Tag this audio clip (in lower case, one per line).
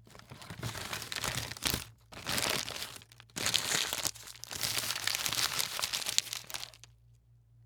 crumpling